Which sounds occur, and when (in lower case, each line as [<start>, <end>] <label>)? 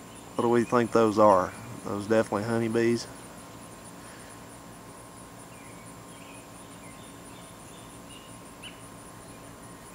[0.00, 0.41] tweet
[0.00, 9.94] background noise
[0.33, 1.50] man speaking
[1.43, 1.70] tweet
[1.78, 3.02] man speaking
[4.04, 4.43] breathing
[5.49, 8.80] tweet